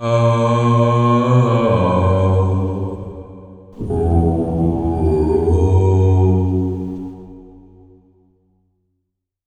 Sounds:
singing, human voice

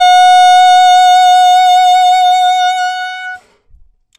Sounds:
musical instrument, music, woodwind instrument

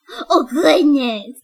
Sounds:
speech, female speech, human voice

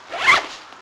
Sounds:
zipper (clothing), home sounds

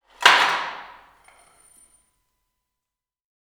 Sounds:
wood

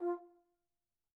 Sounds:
music, brass instrument, musical instrument

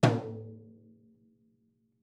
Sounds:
drum, music, musical instrument, percussion

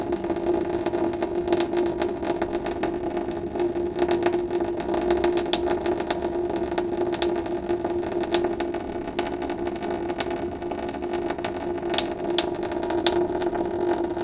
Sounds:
sink (filling or washing), home sounds, water tap

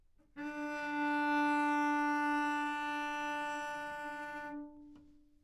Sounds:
bowed string instrument, musical instrument, music

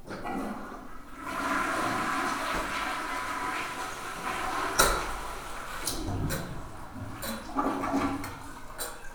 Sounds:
toilet flush, home sounds

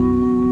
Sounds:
music, organ, keyboard (musical), musical instrument

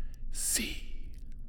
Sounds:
whispering, human voice

